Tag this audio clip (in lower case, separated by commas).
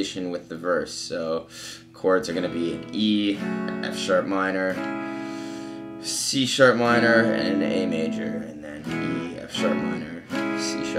musical instrument, speech, guitar, music